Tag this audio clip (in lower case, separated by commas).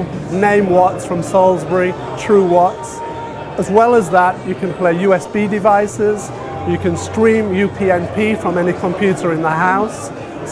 speech, music